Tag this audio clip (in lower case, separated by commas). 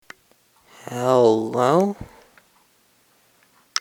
human voice, speech